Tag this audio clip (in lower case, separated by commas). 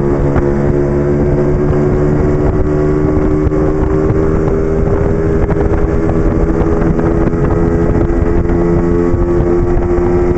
vehicle, motorcycle